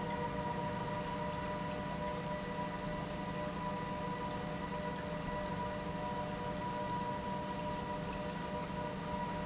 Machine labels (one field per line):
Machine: pump